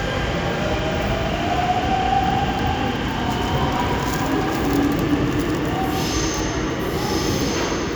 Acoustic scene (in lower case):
subway station